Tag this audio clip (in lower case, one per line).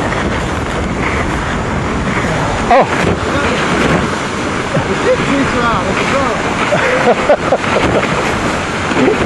vehicle
wind
sailboat
water vehicle
speech